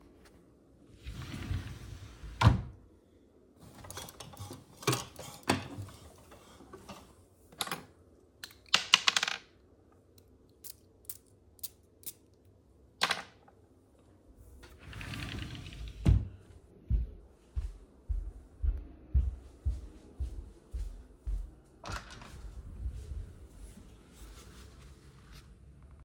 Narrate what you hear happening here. I opened the wardrobe, searched it, took a fragrance took off the cap sprayed it on me put back the fragrance and closed the wardrobe, i then walked to the door and opened it.